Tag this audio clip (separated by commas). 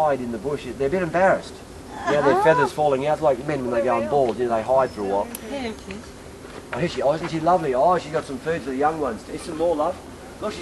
Speech